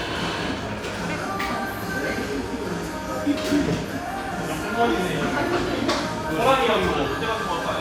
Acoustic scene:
cafe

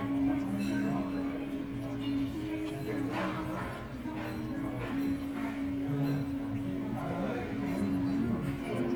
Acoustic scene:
restaurant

